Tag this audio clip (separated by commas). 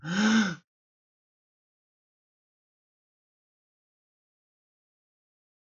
Breathing, Gasp, Respiratory sounds